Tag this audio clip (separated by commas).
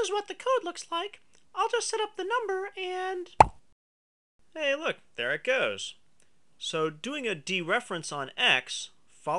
Narration, Plop